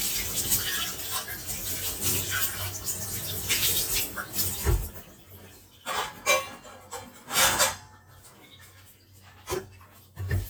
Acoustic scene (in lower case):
kitchen